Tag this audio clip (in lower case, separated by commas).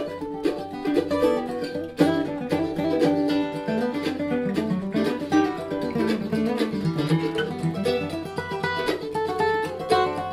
music, bluegrass, country, guitar, plucked string instrument, musical instrument, mandolin, acoustic guitar